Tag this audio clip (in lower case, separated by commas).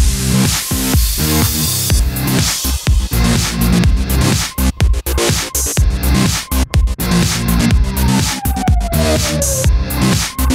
music